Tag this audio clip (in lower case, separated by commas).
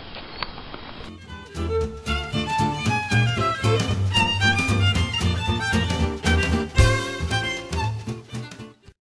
music